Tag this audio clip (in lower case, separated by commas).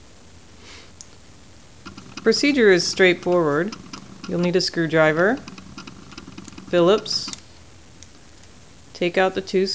speech